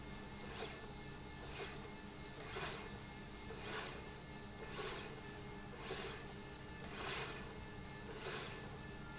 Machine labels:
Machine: slide rail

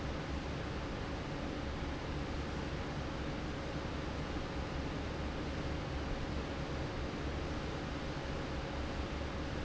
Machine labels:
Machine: fan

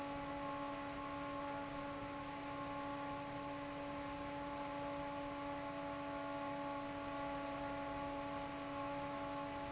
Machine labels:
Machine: fan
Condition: normal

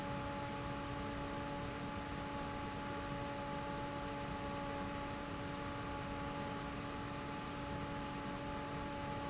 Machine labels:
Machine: fan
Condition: normal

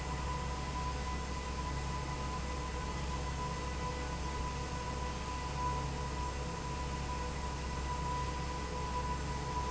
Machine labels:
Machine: fan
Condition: abnormal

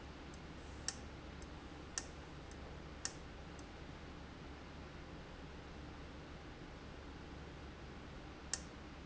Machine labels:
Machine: valve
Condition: abnormal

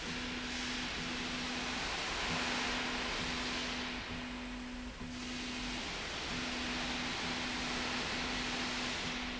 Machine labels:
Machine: slide rail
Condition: normal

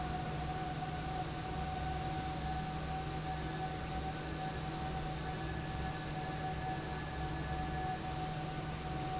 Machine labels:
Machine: fan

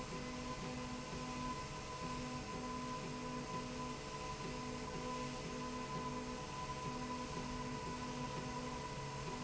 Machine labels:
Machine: slide rail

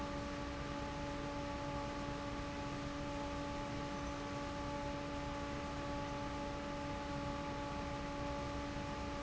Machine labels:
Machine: fan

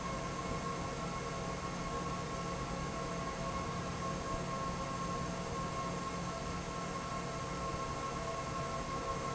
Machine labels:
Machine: fan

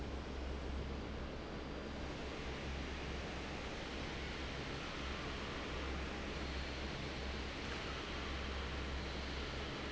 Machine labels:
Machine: fan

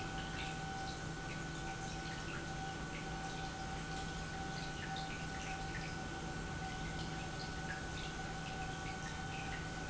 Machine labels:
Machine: pump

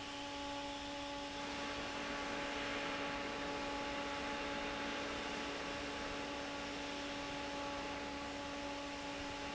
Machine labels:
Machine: fan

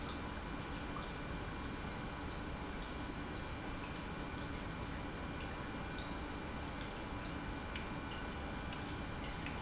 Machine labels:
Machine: pump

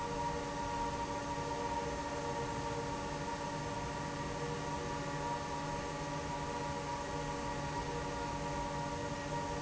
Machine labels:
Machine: fan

